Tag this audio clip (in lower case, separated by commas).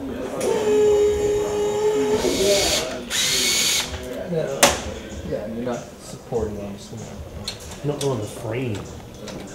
speech